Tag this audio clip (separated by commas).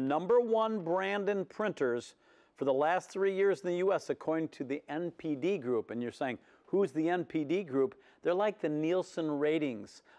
Speech